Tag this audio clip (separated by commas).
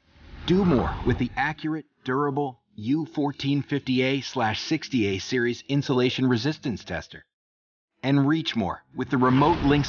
Speech